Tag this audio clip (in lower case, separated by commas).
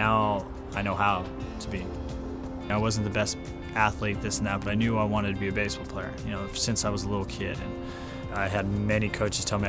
music, speech